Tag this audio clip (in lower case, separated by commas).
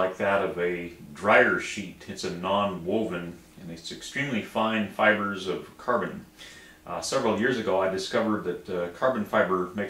speech